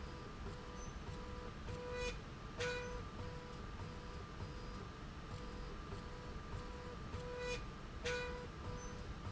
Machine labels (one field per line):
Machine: slide rail